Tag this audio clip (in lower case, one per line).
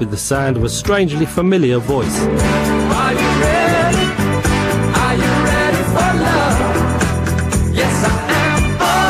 speech
music